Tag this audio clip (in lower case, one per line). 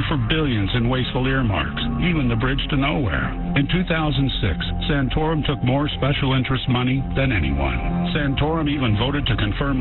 radio
music
speech